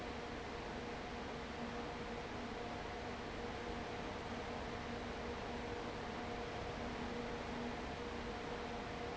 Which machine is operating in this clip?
fan